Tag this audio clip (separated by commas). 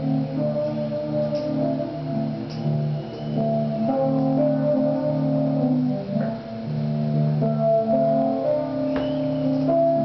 Tubular bells